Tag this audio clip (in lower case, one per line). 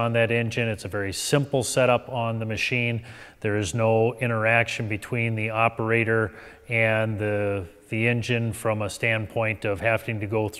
speech